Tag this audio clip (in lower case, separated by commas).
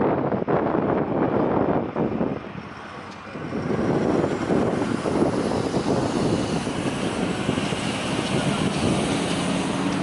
train, rail transport, vehicle